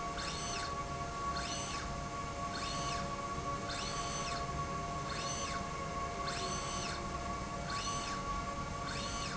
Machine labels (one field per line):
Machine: slide rail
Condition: normal